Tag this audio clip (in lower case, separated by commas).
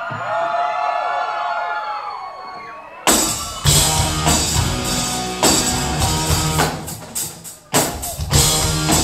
music